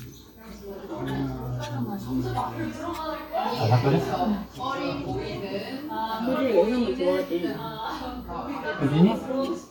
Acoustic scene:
restaurant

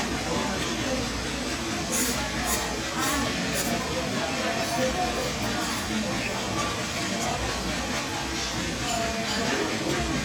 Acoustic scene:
cafe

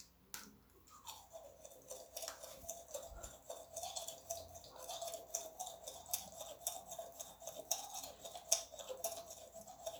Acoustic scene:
restroom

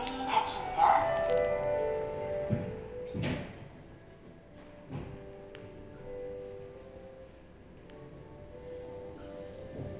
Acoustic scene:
elevator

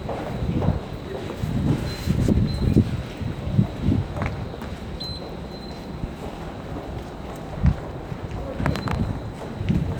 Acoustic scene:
subway station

